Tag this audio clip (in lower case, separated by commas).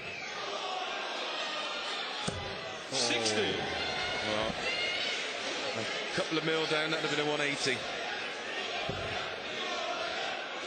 speech